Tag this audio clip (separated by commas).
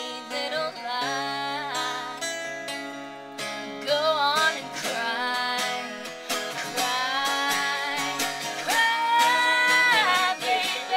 Music